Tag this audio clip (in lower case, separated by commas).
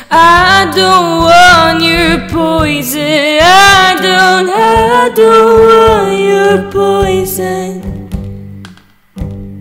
music, inside a small room, singing